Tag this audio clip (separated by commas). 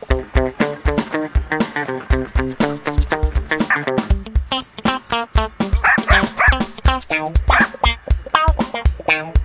Dog, Animal, Yip, Music, Bow-wow, Domestic animals